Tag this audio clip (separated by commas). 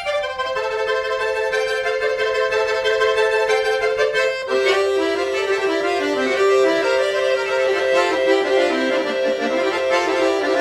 Musical instrument, Accordion, Music